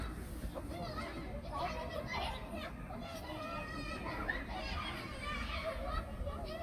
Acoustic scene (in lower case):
park